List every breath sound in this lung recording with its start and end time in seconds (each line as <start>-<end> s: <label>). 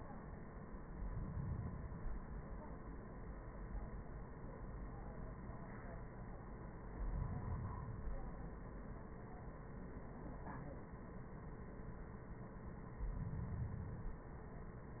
0.86-2.36 s: inhalation
6.88-8.38 s: inhalation
13.00-14.37 s: inhalation